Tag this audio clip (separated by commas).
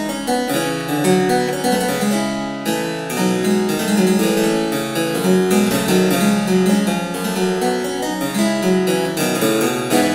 playing harpsichord